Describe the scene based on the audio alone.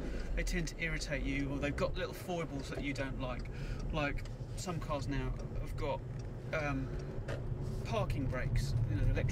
A conversation or speech in a vehicle while signaling to turn